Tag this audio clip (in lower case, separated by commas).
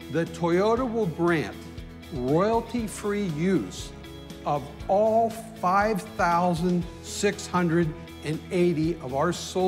music, speech